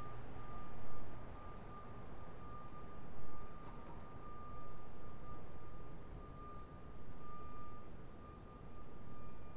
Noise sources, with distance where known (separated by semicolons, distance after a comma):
unidentified alert signal, far